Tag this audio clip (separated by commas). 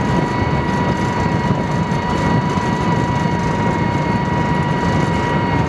Vehicle